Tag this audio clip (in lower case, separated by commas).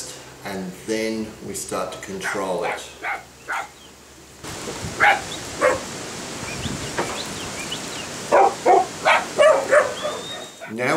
pets, speech, outside, rural or natural, animal, dog